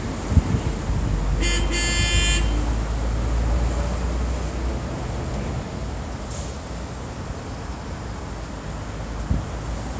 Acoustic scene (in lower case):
street